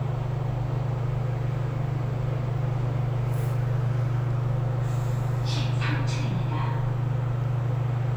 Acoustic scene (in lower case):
elevator